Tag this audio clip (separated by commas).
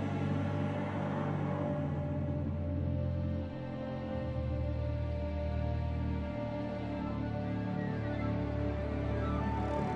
Music